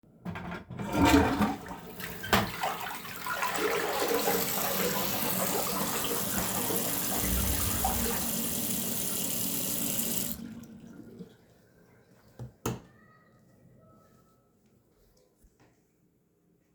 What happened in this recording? I flushed the toilet and then walked to the sink to wash my hands.